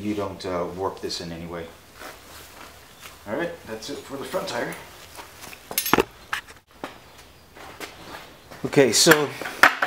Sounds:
speech

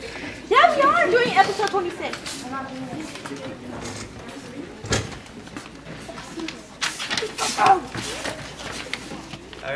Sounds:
speech

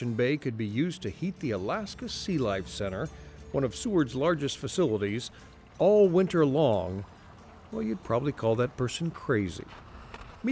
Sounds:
speech
music

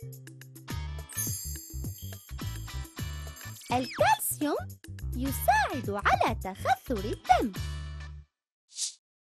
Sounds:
music for children
kid speaking
speech
music

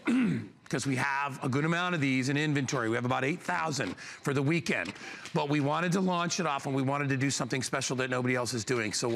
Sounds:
speech
printer

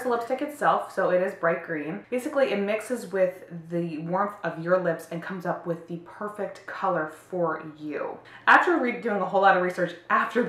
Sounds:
speech

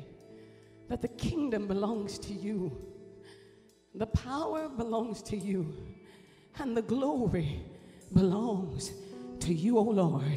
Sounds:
music
speech

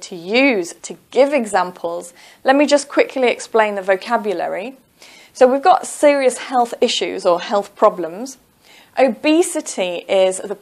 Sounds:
speech

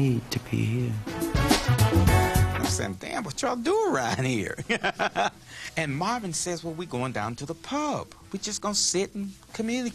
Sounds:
speech
music

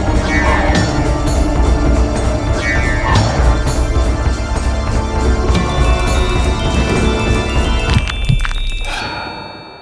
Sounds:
music

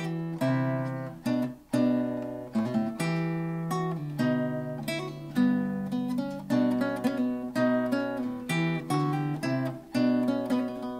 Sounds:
guitar
musical instrument
plucked string instrument
music
acoustic guitar

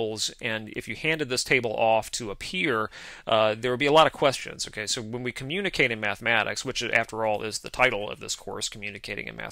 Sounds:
speech

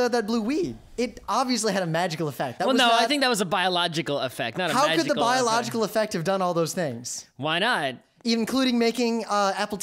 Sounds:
speech

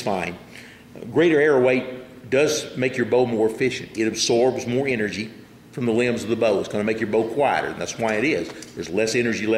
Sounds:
speech

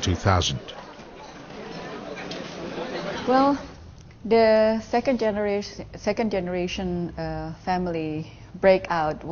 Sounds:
speech
inside a public space

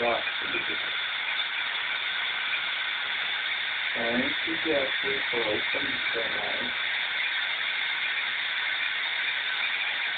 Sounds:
speech

